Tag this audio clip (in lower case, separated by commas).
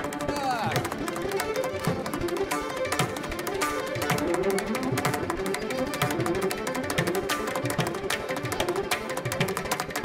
fiddle, music